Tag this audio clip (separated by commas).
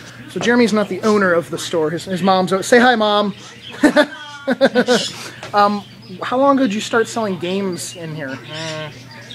inside a public space, Speech